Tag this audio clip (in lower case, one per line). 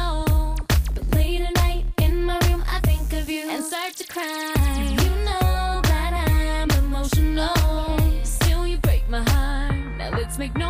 music